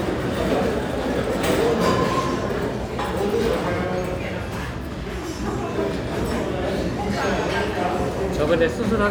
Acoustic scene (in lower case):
restaurant